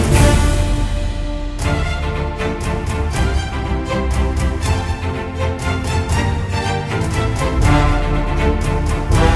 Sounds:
Music

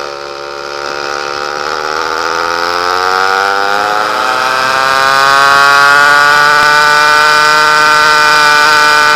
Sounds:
Accelerating, Vehicle, Medium engine (mid frequency)

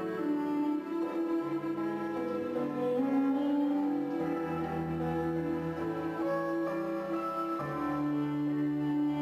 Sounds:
Music

